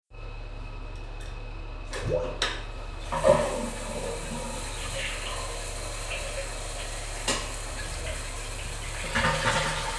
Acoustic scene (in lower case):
restroom